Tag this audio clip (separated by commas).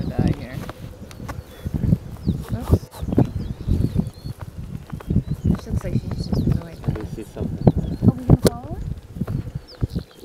cheetah chirrup